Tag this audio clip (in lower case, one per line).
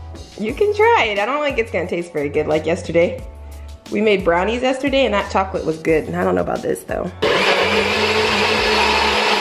blender